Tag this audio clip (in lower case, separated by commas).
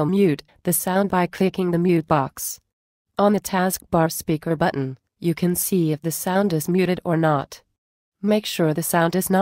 speech